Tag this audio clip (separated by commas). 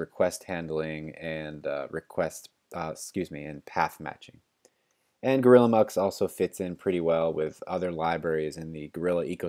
Speech